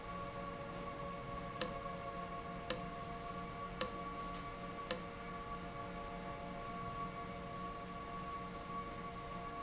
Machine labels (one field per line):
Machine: valve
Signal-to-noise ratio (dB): 0 dB